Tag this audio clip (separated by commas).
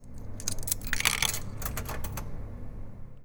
home sounds, Coin (dropping)